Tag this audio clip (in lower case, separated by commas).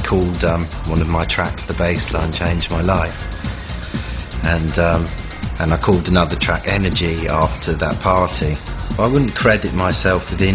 speech, music